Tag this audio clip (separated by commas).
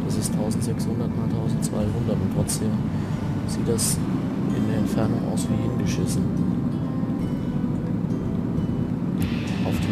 Music, Speech, Vehicle